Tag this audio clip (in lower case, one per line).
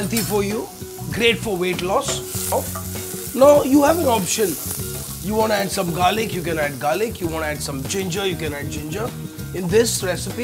music
speech